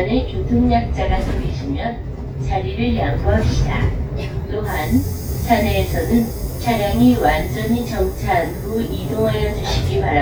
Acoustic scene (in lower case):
bus